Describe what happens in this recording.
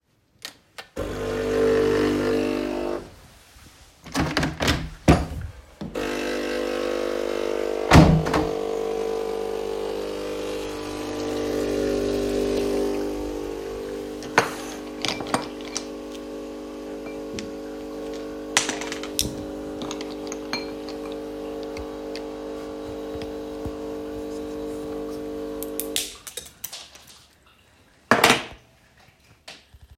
The phone is worn on the wrist while standing in the kitchen. A window is opened and closed while a coffee machine is running at the same time. In the background a hazelnut is cracked.